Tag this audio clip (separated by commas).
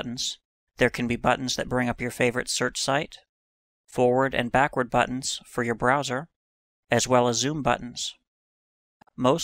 Speech